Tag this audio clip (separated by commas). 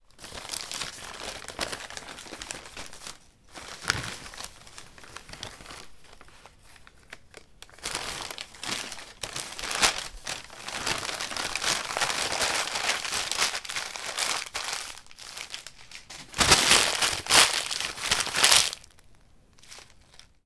crinkling